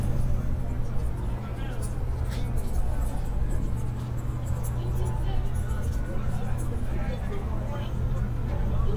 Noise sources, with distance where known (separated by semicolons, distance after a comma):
unidentified human voice, far